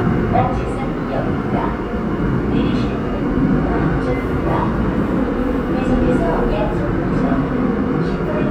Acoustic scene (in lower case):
subway train